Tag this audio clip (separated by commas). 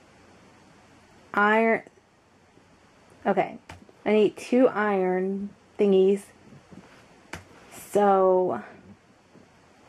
Speech